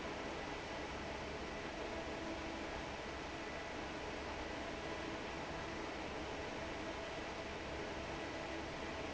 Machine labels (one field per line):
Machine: fan